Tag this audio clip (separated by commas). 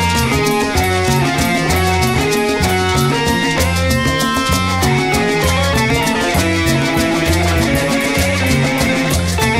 Music